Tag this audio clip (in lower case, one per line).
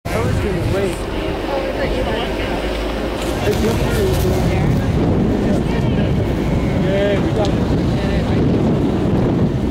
outside, rural or natural
speech